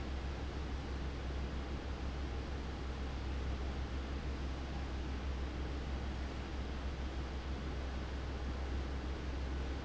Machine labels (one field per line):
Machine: fan